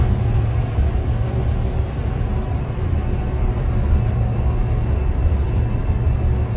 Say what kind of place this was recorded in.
car